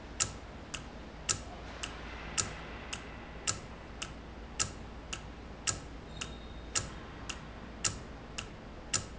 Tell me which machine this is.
valve